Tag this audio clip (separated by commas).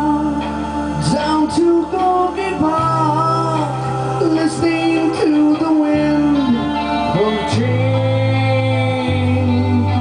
Music